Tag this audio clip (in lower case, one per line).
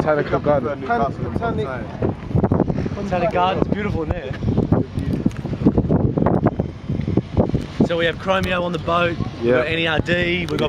speech
outside, urban or man-made